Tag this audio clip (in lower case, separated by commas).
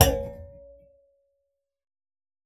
thud